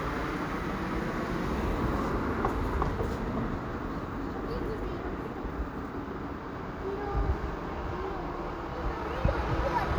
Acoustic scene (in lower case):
residential area